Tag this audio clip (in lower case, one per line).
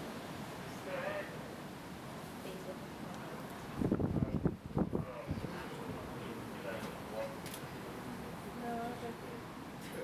speech